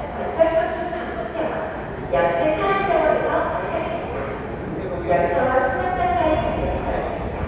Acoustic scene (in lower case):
subway station